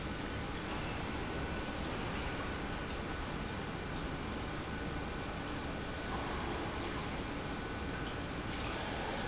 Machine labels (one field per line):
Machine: pump